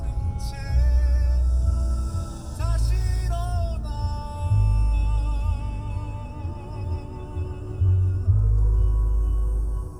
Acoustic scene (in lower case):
car